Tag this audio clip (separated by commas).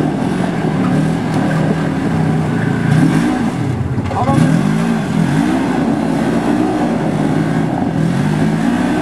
Car, Speech, Accelerating, outside, rural or natural, Vehicle